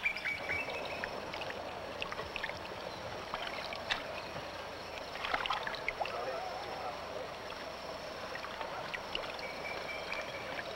A stream or a pond of running water